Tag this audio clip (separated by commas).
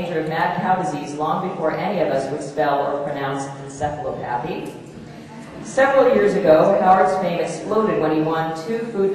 Speech